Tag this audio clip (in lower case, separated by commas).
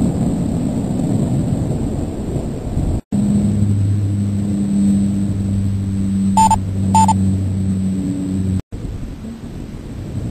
microwave oven